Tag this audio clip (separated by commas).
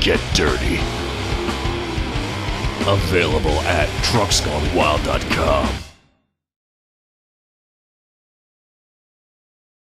Speech, Music